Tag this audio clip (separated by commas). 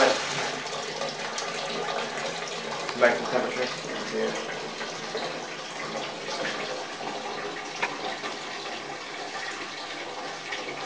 Toilet flush, Speech